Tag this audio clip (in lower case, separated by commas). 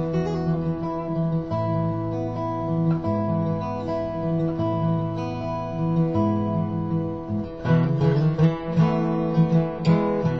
plucked string instrument, musical instrument, strum, music, acoustic guitar, guitar